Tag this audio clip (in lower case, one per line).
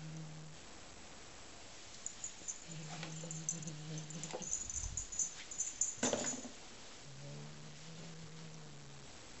cat growling